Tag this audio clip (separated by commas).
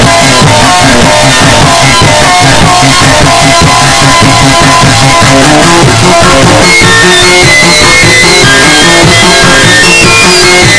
Music